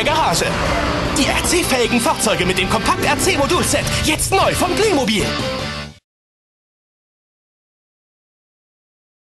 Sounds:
vehicle, music, speech

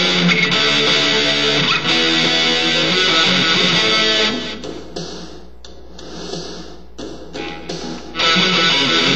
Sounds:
guitar, plucked string instrument, electric guitar, music, musical instrument

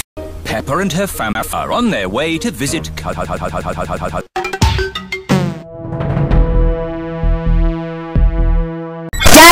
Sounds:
speech, music

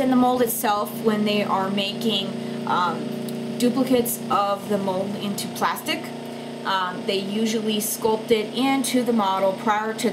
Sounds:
speech

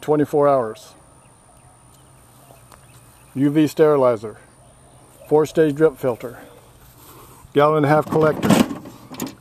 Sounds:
speech

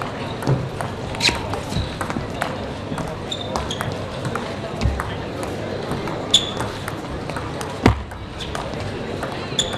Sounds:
playing table tennis

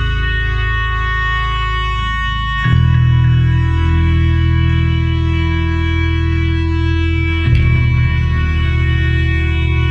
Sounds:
music

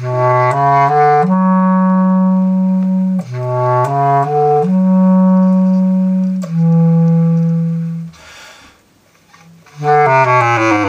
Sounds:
brass instrument, saxophone

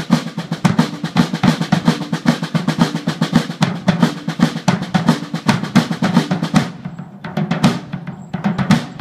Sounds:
percussion, drum, drum roll

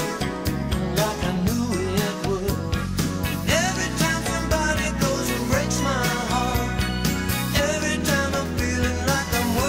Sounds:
male singing, music

